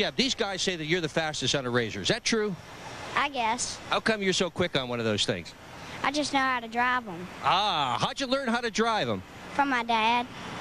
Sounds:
speech

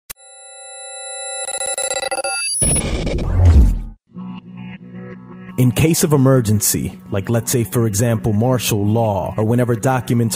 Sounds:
music

